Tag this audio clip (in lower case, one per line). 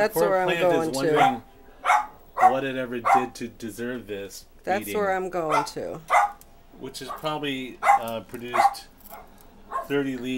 inside a small room
speech